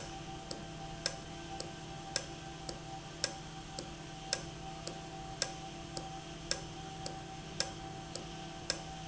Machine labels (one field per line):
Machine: valve